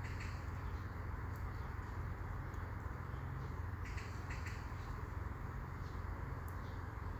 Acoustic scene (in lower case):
park